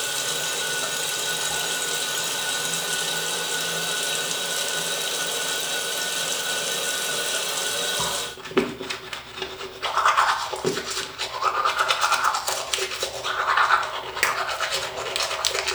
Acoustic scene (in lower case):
restroom